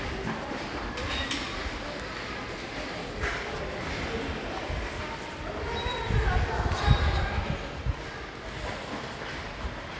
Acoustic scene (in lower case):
subway station